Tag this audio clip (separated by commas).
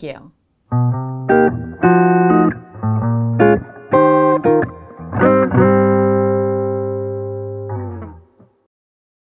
Speech, Electronic tuner, Music, inside a small room